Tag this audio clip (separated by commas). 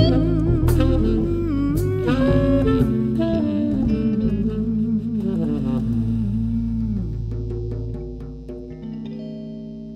Music